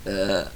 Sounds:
Burping

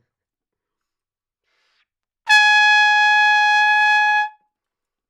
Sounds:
Musical instrument, Trumpet, Music, Brass instrument

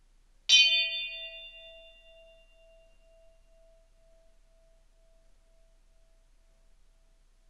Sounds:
Bell

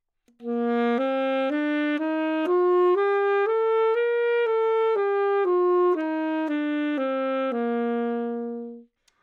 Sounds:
woodwind instrument, Musical instrument, Music

